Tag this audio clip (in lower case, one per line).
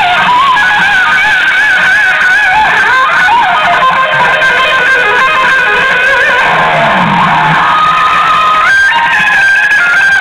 music